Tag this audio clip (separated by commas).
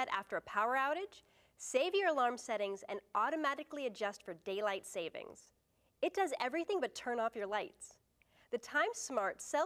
Speech